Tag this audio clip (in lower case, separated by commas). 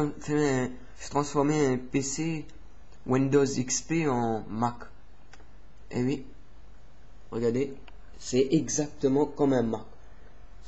speech